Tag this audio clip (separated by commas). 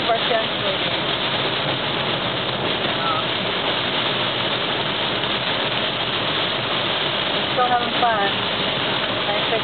Speech